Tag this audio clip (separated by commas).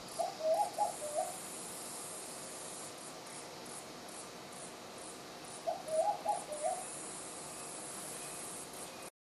Coo, Bird